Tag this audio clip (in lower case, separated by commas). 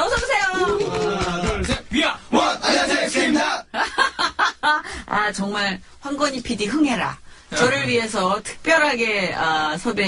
speech